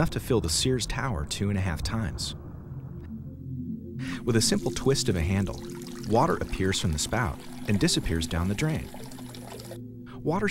Continuous background music and male speech with water flowing from a faucet into a sink halfway through